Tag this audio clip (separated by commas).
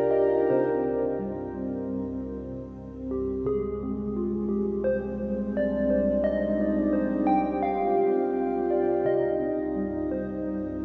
Music, Keyboard (musical), Piano, Musical instrument